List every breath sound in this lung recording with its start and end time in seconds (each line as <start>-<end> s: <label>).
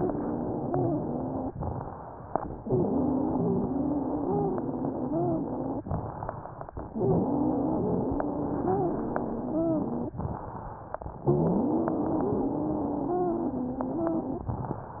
0.00-1.50 s: exhalation
0.00-1.50 s: wheeze
1.59-2.56 s: inhalation
1.59-2.56 s: crackles
2.64-5.84 s: exhalation
2.64-5.84 s: wheeze
5.96-6.93 s: inhalation
5.96-6.93 s: crackles
6.93-10.13 s: exhalation
6.93-10.13 s: wheeze
10.23-11.20 s: inhalation
10.23-11.20 s: crackles
11.25-14.46 s: exhalation
11.25-14.46 s: wheeze